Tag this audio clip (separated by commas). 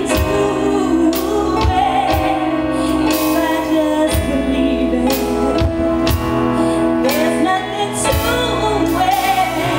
Music